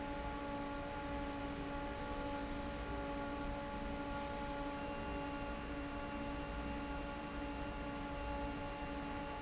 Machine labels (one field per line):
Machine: fan